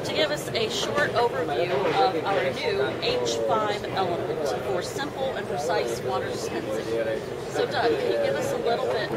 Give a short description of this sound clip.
An adult female is speaking, and a group of people are speaking in the background